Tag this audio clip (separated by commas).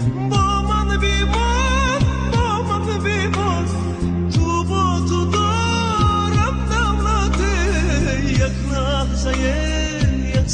Music, Song, Singing